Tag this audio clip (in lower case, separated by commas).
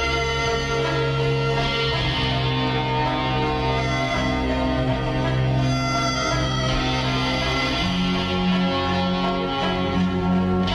music